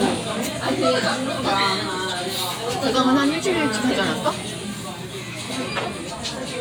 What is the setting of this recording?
crowded indoor space